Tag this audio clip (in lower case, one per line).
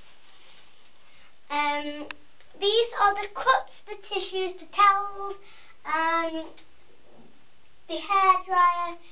speech